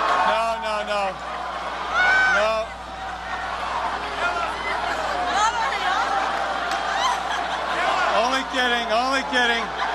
A crowd is talking, yelling and laughing